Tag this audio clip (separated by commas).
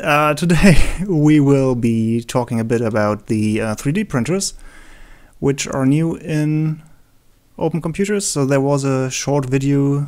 Speech